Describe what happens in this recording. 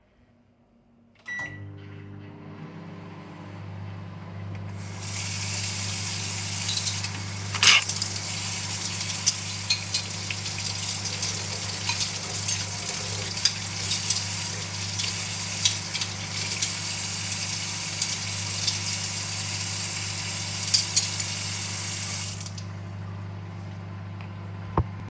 I turned on the microwave. While it was continuously humming, I turned on the tap and started washing the dishes, creating a clear overlap of the microwave, running water, and cutlery sounds. Finally, I turned off the tap.